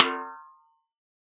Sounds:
Percussion, Snare drum, Music, Drum, Musical instrument

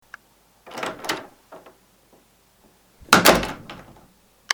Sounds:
home sounds, Door, Slam

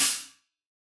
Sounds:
Music, Cymbal, Hi-hat, Musical instrument, Percussion

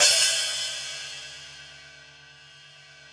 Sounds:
Music, Musical instrument, Hi-hat, Cymbal, Percussion

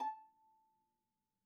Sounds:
Music, Bowed string instrument, Musical instrument

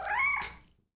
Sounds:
Animal, pets, Cat, Meow

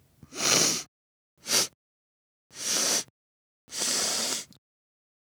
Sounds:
Respiratory sounds

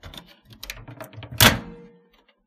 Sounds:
Microwave oven, Domestic sounds

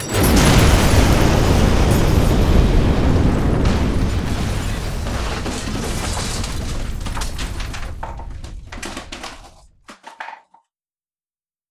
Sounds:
Boom, Explosion

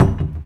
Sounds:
home sounds, Cupboard open or close

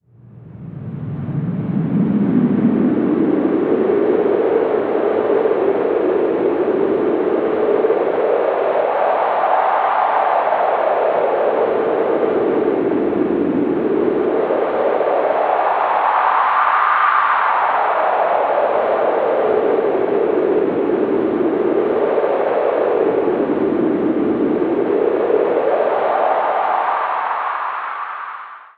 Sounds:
Wind

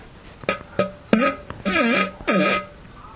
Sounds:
Fart

